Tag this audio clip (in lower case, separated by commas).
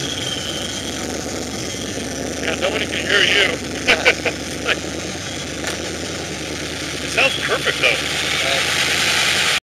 speech, vehicle